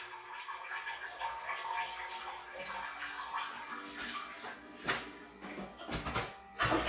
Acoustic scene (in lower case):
restroom